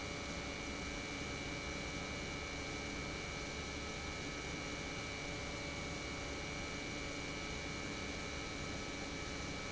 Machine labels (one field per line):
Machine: pump